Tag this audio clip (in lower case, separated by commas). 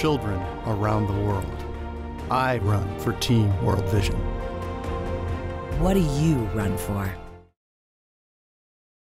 music, speech